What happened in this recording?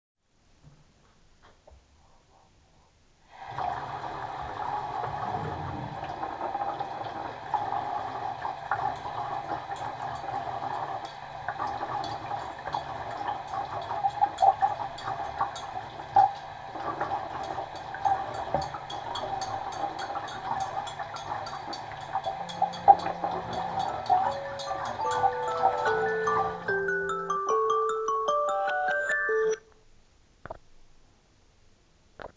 I turned the water on, i closed the drawer and started washing the dishes. My alarm set off and i tuned it off after turning the water down.